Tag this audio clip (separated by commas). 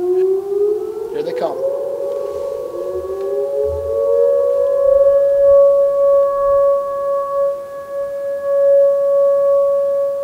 coyote howling